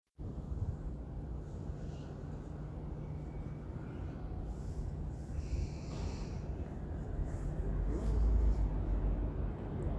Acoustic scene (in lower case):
residential area